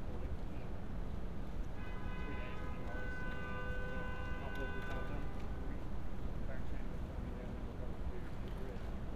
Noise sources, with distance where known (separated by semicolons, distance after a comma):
car horn, far; person or small group talking, far